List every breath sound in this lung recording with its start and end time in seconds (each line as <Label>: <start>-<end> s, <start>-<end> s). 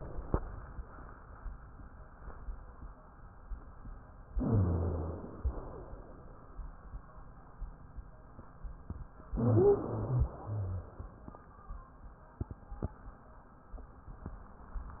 Inhalation: 4.36-5.30 s, 9.32-10.32 s
Exhalation: 5.40-6.10 s, 10.32-10.96 s
Wheeze: 4.34-5.28 s, 5.40-6.10 s, 9.30-10.26 s, 10.32-10.96 s